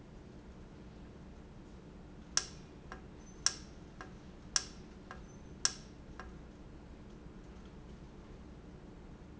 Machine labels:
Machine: valve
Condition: normal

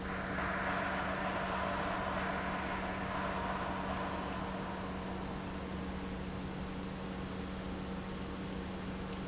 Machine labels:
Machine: pump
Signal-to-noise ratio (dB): -6 dB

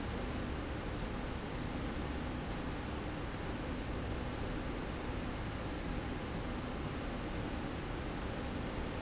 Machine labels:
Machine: slide rail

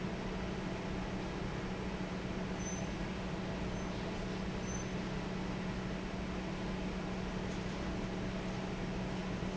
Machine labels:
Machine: fan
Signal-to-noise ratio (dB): -6 dB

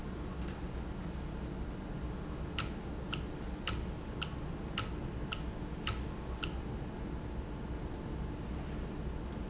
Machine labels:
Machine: valve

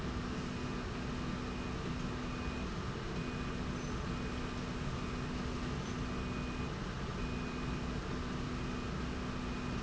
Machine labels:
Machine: slide rail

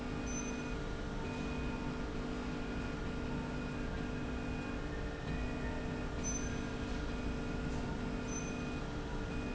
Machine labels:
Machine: slide rail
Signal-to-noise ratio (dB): -6 dB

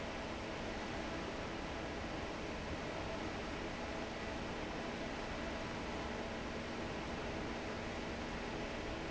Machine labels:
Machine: fan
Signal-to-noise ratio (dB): 0 dB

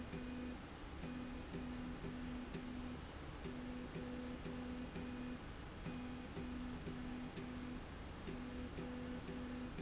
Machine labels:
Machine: slide rail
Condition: normal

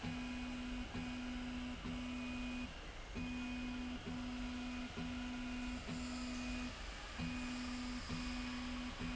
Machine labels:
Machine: slide rail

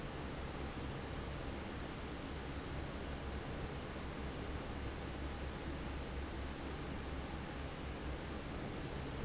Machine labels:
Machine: fan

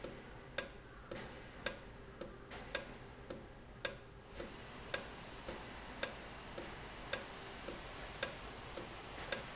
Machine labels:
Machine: valve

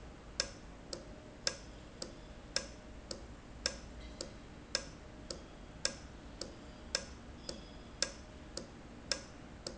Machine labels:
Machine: valve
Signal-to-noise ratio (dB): 6 dB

